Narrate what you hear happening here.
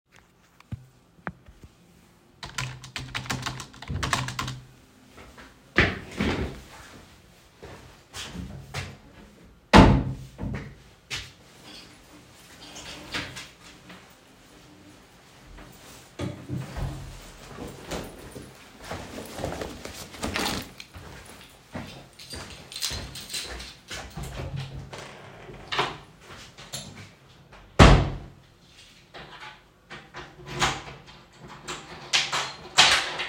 I type on the keyboard in the living room. I stand up and walk across the room. I open and close a wardrobe drawer and afterwards open and close the door.